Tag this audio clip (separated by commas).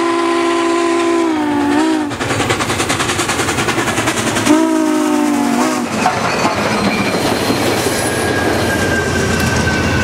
Vehicle